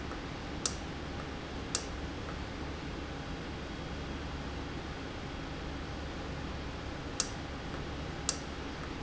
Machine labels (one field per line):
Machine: valve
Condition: normal